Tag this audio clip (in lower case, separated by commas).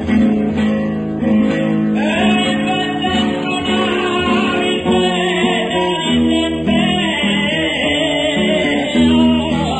music, singing